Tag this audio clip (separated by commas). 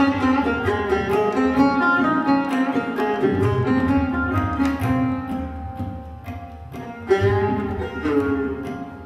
Music, Carnatic music, Musical instrument, Plucked string instrument, Tabla, Sitar